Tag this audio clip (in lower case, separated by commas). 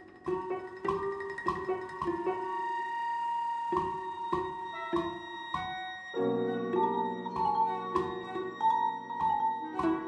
musical instrument, violin, piano, cello, classical music, bowed string instrument, music, orchestra